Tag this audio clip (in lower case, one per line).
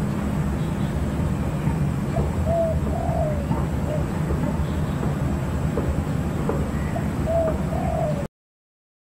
animal
coo
bird